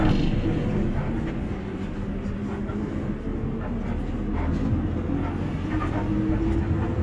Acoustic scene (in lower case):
bus